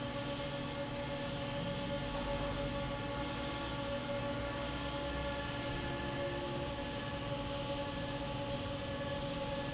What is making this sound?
fan